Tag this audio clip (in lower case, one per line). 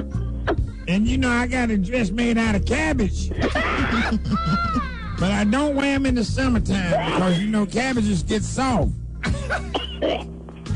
speech
music